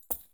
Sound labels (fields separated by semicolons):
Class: object falling; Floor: carpet